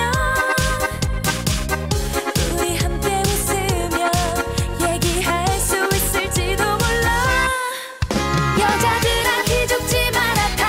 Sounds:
music of asia
singing
music
disco

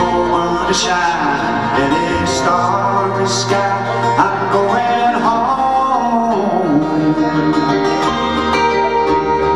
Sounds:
music

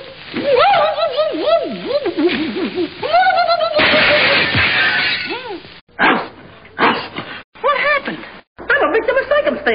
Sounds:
speech

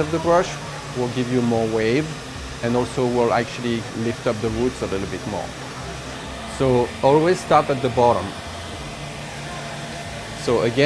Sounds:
hair dryer drying

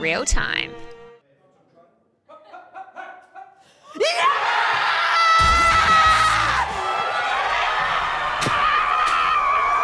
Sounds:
speech
music

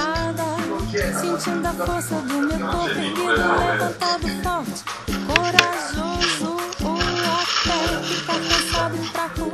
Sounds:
speech
music

